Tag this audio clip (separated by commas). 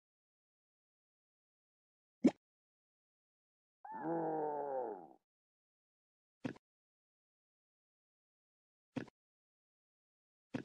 Silence